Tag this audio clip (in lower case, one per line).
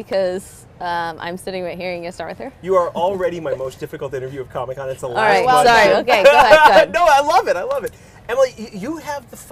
speech